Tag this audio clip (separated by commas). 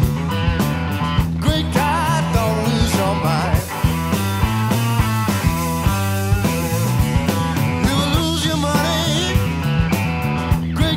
Music, Punk rock, Grunge